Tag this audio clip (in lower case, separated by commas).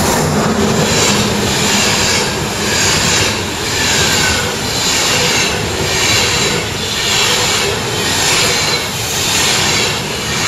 train whistling